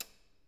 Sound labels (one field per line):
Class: switch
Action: being turned off